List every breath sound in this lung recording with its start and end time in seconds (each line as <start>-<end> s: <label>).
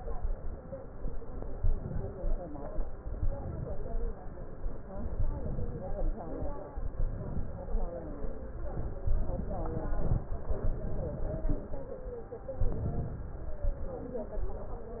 1.55-2.48 s: inhalation
3.07-4.00 s: inhalation
5.14-6.07 s: inhalation
6.96-7.70 s: inhalation
9.12-9.94 s: inhalation
12.56-13.39 s: inhalation